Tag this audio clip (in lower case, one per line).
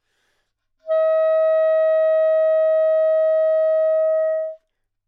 music
musical instrument
woodwind instrument